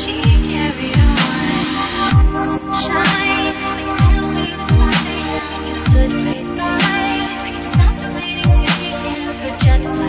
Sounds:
music, electronic music, dubstep

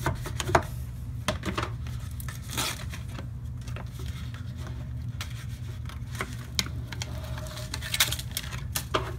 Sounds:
inside a small room

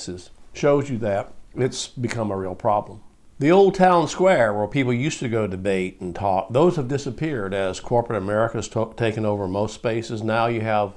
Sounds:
male speech, speech

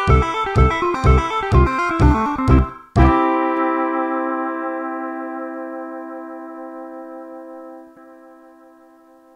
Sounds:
guitar, slide guitar, musical instrument, electronic tuner, plucked string instrument, music

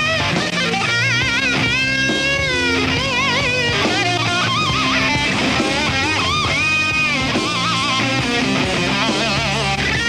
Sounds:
plucked string instrument, musical instrument, guitar, music

